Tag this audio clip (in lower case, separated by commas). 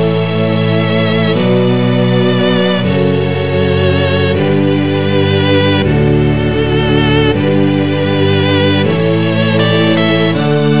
background music, music